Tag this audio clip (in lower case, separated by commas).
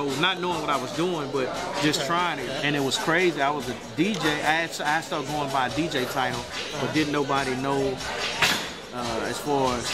music, speech